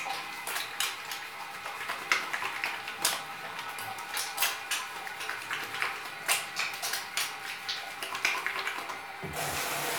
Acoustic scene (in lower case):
restroom